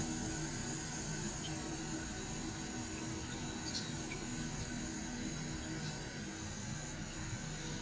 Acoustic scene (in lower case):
restroom